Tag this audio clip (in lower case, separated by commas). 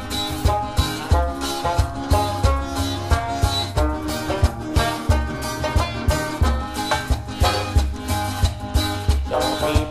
music